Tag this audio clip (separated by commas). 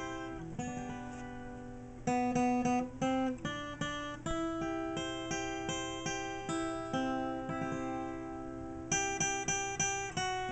Musical instrument, Guitar, Music, Plucked string instrument, Acoustic guitar, Strum